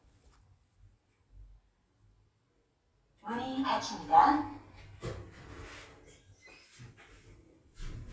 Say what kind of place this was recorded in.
elevator